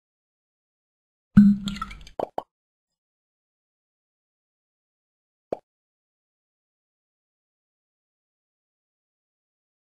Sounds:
plop

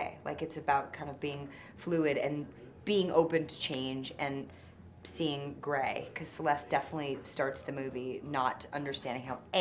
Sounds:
speech

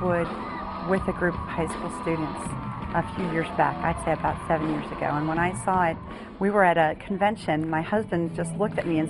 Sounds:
music
speech

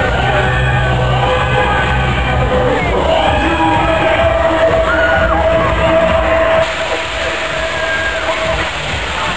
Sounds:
music

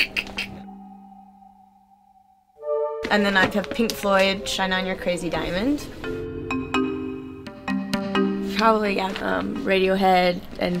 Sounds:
speech
music

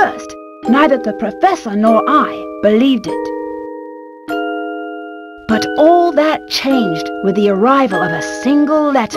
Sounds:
music
speech
ding-dong

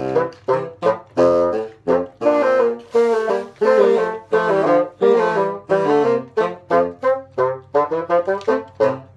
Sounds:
playing bassoon

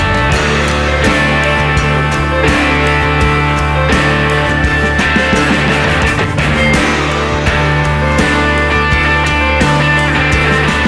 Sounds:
progressive rock
music

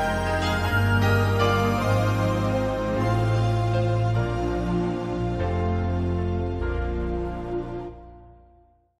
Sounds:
music

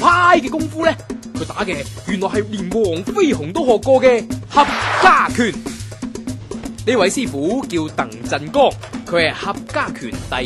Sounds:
speech
music

